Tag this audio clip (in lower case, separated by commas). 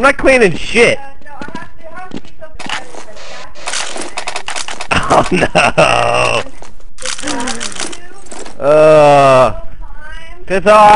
speech